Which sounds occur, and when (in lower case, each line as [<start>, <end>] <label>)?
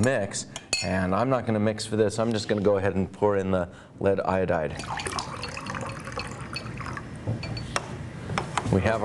[0.00, 0.42] man speaking
[0.00, 9.04] mechanisms
[0.51, 0.92] chink
[0.72, 3.66] man speaking
[3.68, 3.90] breathing
[3.97, 4.68] man speaking
[4.68, 6.99] pour
[7.18, 7.60] generic impact sounds
[7.37, 7.64] chink
[8.21, 8.64] generic impact sounds